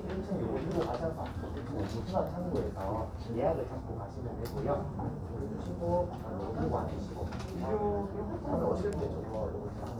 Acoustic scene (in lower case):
crowded indoor space